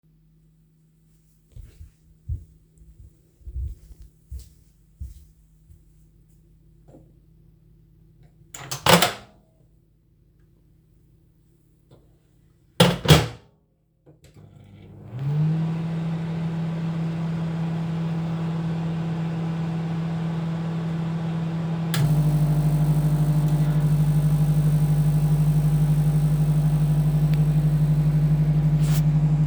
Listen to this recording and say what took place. Went over from the living room to the kitchen, opened the microwave door, put food in, shut it and started the microwave